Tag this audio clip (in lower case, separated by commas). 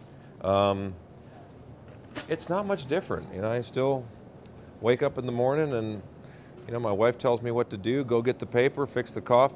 speech